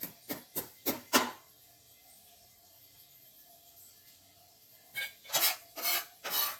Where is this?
in a kitchen